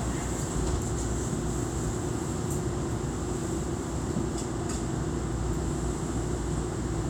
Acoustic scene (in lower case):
subway train